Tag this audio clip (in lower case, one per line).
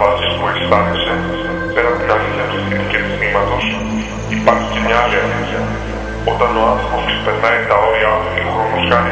speech
music
electronic music